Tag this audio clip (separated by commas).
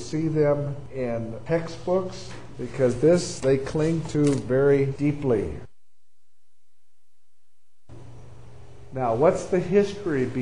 Speech